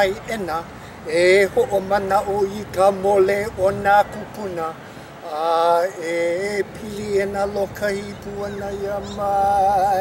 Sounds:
Speech, Mantra

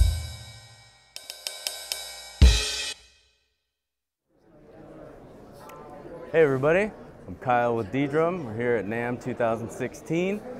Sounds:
Speech, Drum kit, Drum, Music, Bass drum, Musical instrument

